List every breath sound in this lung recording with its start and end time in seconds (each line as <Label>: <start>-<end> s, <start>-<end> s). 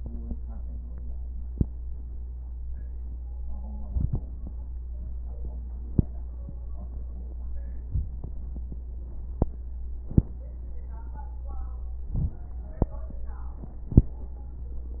Inhalation: 3.74-4.24 s, 12.03-12.53 s